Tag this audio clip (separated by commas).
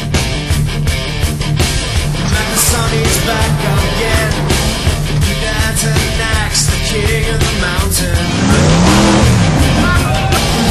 Music